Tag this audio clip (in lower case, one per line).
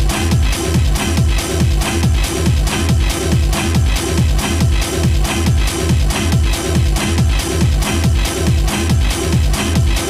electronic music
music
techno